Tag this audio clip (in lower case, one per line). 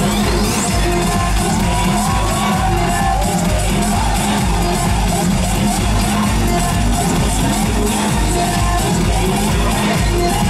music